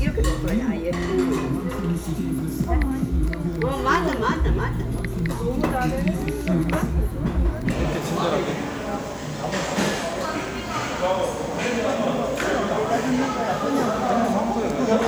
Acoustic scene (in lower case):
restaurant